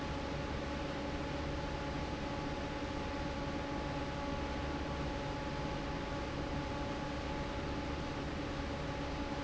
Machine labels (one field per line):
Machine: fan